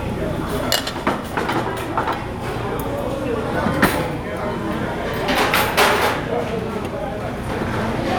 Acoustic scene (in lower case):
crowded indoor space